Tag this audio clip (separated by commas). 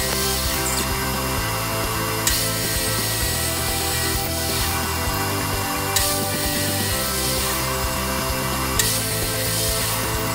Wood, inside a small room, Music, Tools